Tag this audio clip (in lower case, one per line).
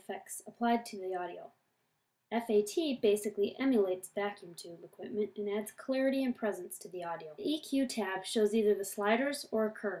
speech